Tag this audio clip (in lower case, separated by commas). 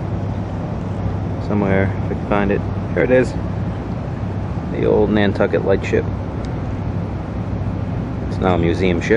speech